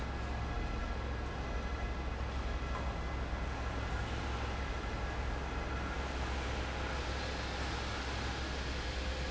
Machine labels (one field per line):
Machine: fan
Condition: abnormal